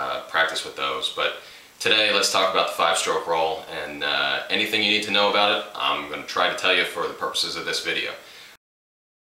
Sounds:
Speech

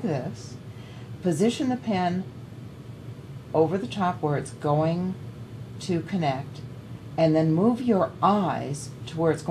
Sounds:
Speech

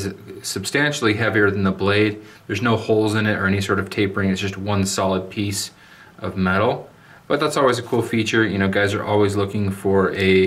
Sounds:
Speech

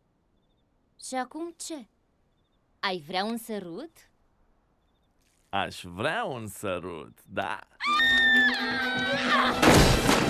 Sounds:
Music, Speech

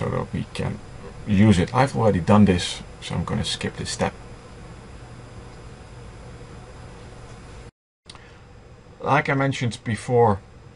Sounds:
Speech

